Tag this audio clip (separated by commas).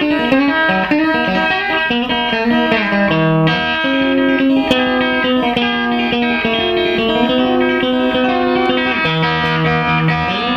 Music